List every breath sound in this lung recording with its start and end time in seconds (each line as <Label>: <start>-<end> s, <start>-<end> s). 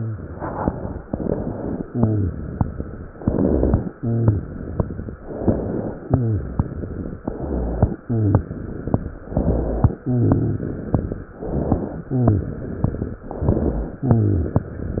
Inhalation: 1.06-1.82 s, 3.19-3.91 s, 5.26-5.98 s, 7.21-8.01 s, 9.30-10.00 s, 11.38-12.09 s, 13.32-13.99 s
Exhalation: 0.00-0.97 s, 1.90-2.66 s, 3.98-5.14 s, 6.17-7.19 s, 8.04-8.96 s, 10.07-10.97 s, 12.10-13.21 s, 14.04-15.00 s
Rhonchi: 0.00-0.27 s, 1.90-2.43 s, 3.19-3.91 s, 3.98-4.52 s, 6.17-6.68 s, 7.21-8.01 s, 8.04-8.52 s, 9.30-10.00 s, 10.07-10.78 s, 11.38-12.09 s, 12.10-12.58 s, 13.32-13.99 s, 14.04-14.66 s